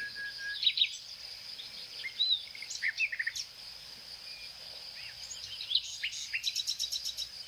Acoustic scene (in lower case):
park